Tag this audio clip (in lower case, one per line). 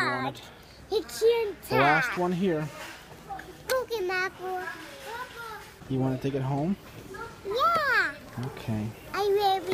child speech
speech